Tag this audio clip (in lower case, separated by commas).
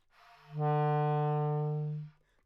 musical instrument, woodwind instrument, music